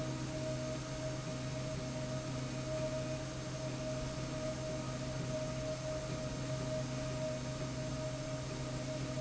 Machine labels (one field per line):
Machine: slide rail